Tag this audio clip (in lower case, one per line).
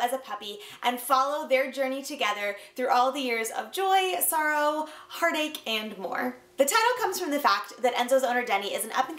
speech